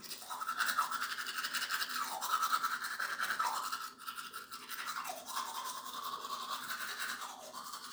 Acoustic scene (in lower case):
restroom